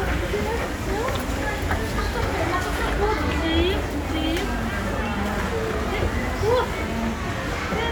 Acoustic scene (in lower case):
crowded indoor space